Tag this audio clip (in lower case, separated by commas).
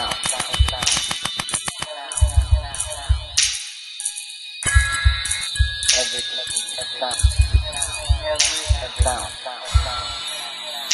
music, electronic music